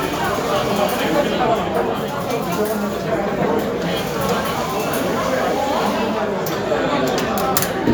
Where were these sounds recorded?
in a cafe